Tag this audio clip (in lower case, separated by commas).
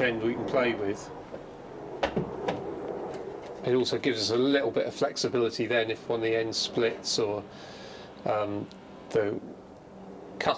speech